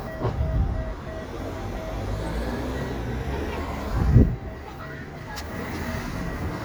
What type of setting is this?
residential area